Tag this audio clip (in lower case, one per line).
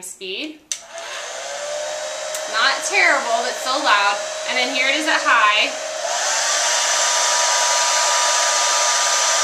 hair dryer